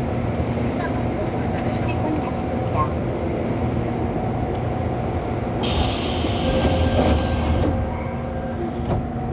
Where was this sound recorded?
on a subway train